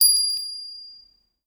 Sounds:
Bell

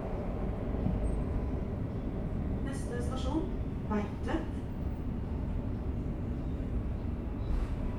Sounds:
metro, Vehicle, Rail transport

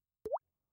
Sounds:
Water, Liquid, Rain, Drip, Raindrop

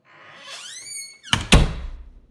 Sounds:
home sounds, Squeak, Slam, Door

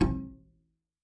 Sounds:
Bowed string instrument, Music, Musical instrument

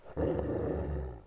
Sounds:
Dog, Animal, Domestic animals, Growling

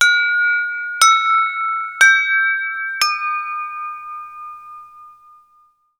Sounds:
Alarm

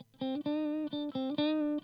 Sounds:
Guitar, Electric guitar, Musical instrument, Music, Plucked string instrument

